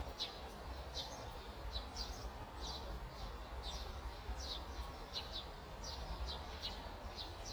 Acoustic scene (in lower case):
park